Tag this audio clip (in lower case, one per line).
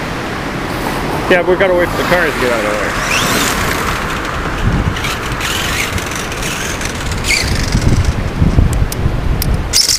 engine
vehicle
outside, rural or natural
speech